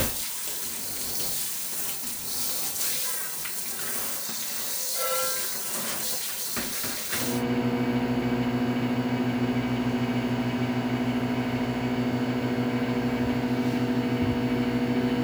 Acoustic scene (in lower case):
kitchen